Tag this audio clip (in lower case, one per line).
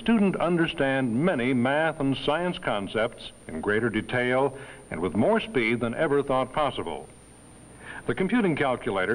speech